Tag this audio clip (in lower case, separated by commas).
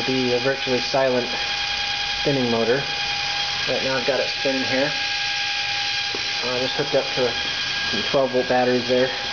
engine, speech, inside a small room